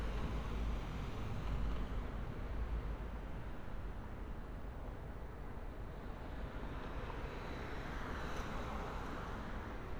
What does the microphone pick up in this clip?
background noise